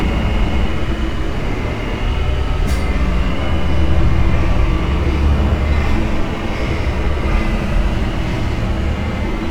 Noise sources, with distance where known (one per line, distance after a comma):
unidentified impact machinery, near